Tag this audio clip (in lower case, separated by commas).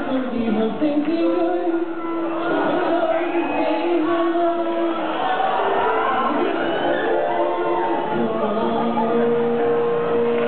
music, speech, independent music